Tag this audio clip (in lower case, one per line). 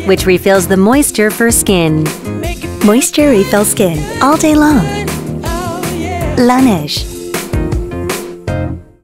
speech
music